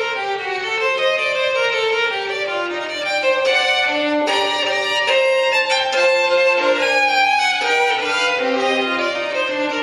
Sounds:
musical instrument
violin
music

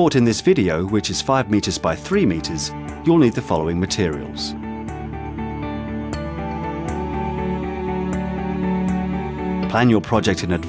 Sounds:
speech
music

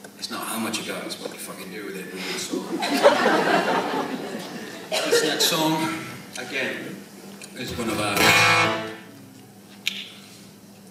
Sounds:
music
speech
musical instrument
acoustic guitar
guitar

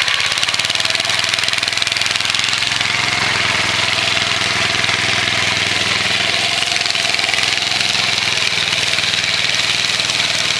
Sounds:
lawn mowing
lawn mower
engine

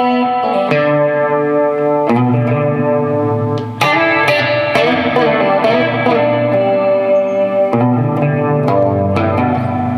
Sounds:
acoustic guitar
music
musical instrument
plucked string instrument
guitar

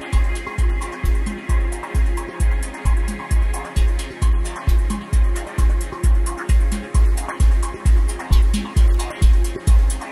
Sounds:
music

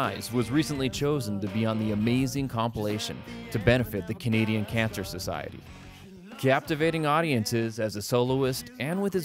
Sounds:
speech
music

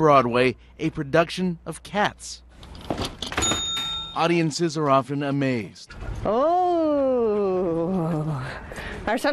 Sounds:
speech

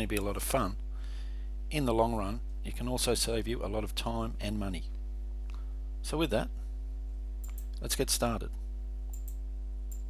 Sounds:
speech

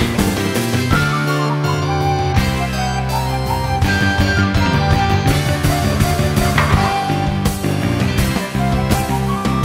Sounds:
music

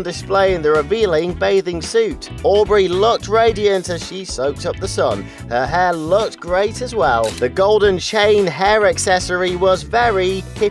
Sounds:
music
speech

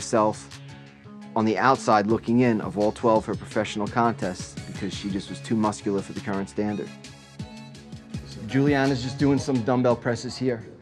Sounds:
music
speech

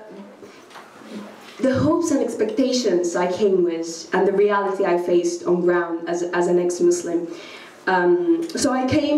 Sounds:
female speech
monologue
speech

